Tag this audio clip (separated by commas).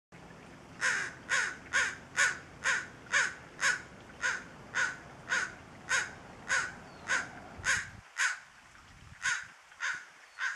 bird squawking